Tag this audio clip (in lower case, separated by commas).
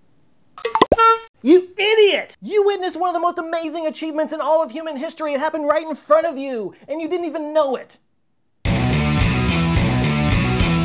speech, music